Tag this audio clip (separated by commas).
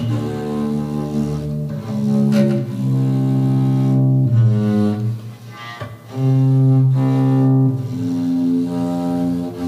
Music, Musical instrument